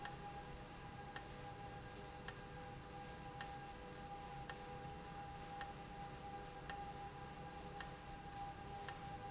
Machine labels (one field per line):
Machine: valve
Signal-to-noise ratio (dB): 6 dB